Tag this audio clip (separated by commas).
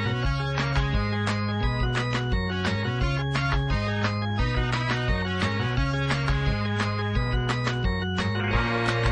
Music